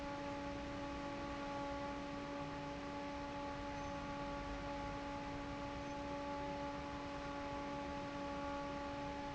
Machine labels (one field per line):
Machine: fan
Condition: normal